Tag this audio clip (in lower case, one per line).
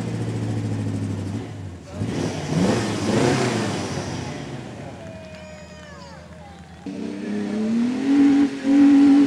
vroom
medium engine (mid frequency)
speech
truck
car
tire squeal
vehicle